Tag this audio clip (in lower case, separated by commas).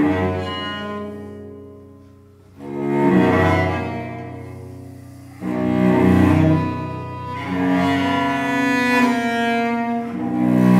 cello, music, classical music, fiddle